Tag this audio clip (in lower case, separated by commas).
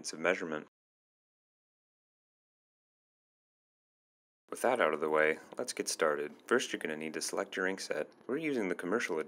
speech